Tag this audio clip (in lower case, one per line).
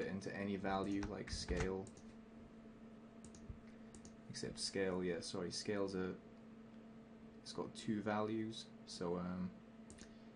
speech